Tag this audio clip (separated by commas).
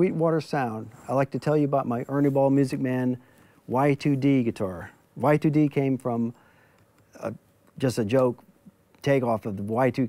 Speech